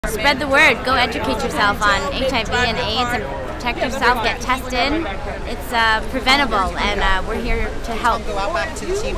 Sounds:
Speech

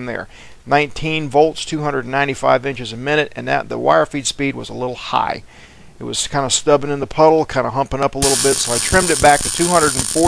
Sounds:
arc welding

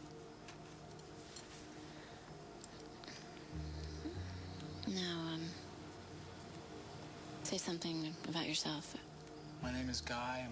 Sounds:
Speech

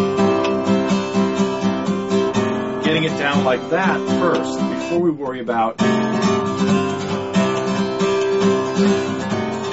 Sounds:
Guitar, Musical instrument, Rock music, Music, Acoustic guitar, Speech, Plucked string instrument, Bowed string instrument

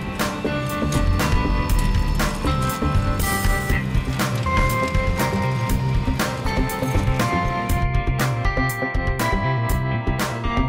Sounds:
Music

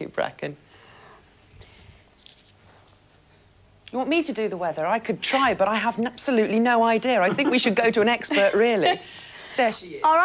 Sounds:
Speech

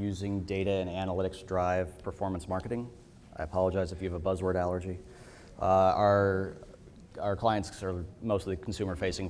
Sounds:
Speech

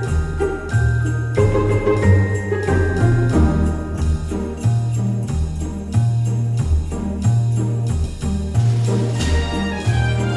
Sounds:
Music

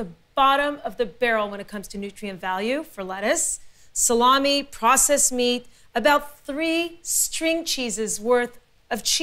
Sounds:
Speech

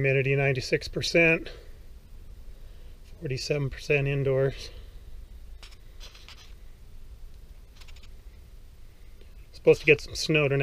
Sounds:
Speech, inside a small room

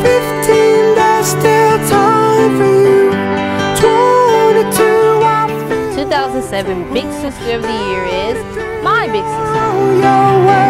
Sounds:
Music, Speech

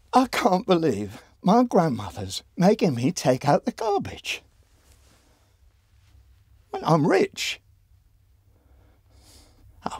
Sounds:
Speech

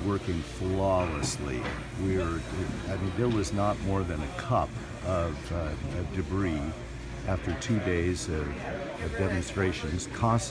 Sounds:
Speech

